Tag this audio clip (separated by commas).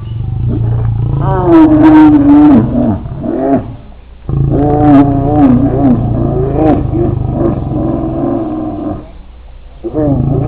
Animal, Wild animals, roaring cats, lions growling